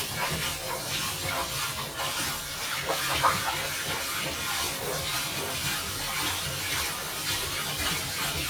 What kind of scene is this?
kitchen